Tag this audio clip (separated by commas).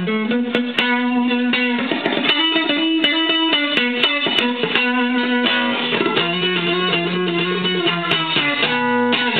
Musical instrument, Guitar, Electric guitar, Music, Plucked string instrument